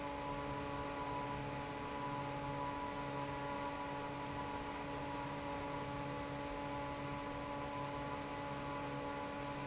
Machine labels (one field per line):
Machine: fan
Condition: normal